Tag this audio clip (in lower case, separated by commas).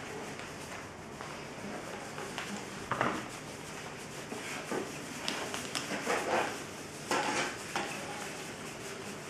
inside a small room